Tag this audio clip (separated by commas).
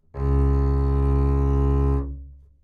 Bowed string instrument, Musical instrument, Music